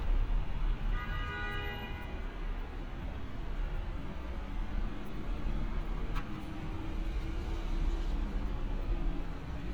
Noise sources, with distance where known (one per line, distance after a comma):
engine of unclear size
car horn, near